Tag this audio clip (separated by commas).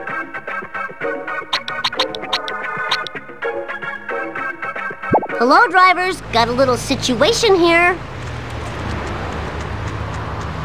Music, Speech